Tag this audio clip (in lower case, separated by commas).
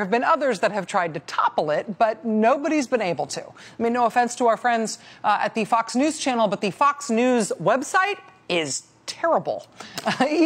speech